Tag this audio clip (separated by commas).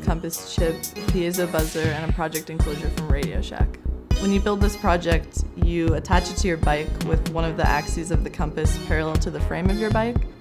Speech, Music